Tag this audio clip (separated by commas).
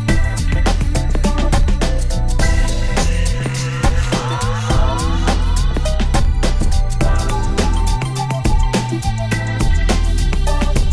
Music